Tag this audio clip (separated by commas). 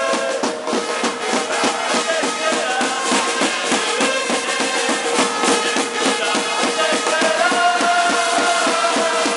Music, Speech